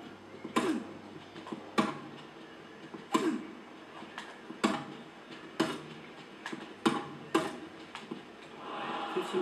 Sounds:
slam, speech

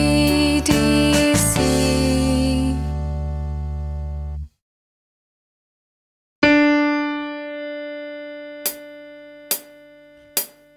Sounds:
music, female singing

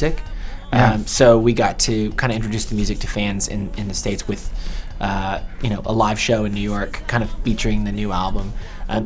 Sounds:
speech, music

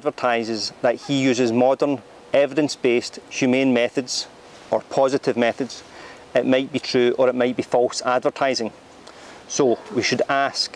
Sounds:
speech

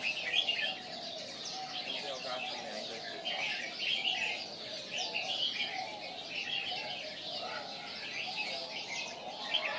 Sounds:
speech

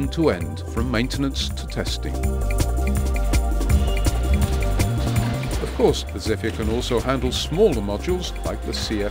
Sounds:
speech, music

